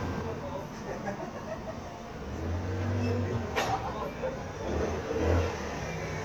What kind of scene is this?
street